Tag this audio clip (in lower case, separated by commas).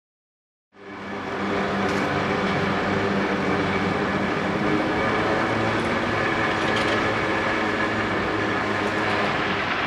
outside, urban or man-made, vehicle